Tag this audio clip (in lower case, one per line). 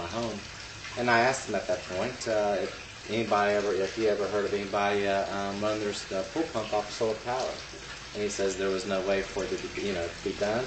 water